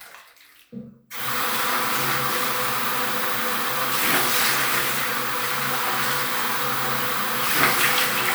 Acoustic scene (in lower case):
restroom